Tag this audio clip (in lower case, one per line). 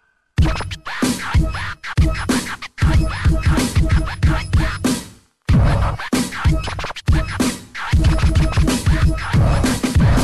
scratching (performance technique)